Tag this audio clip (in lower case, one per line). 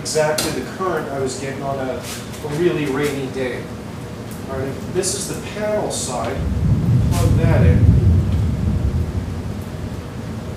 speech